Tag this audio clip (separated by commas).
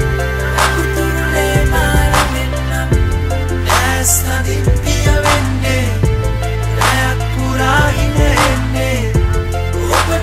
Music, Tender music